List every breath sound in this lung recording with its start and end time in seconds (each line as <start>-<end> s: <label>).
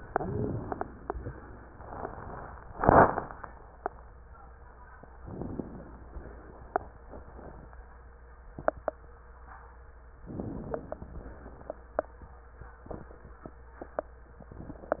5.23-6.09 s: inhalation
6.08-7.70 s: exhalation
10.28-11.14 s: inhalation
11.14-12.00 s: exhalation